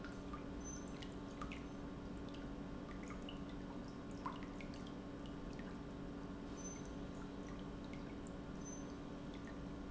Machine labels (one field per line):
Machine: pump